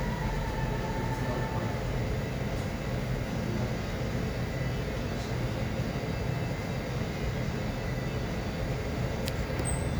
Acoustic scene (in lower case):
cafe